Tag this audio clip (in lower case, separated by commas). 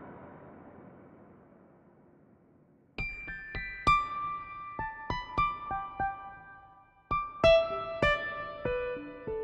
sound effect, music